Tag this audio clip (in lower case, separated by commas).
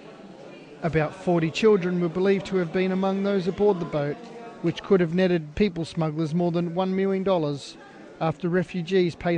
speech